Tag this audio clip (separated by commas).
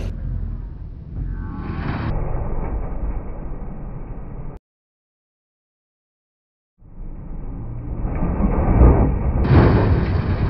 Car, Vehicle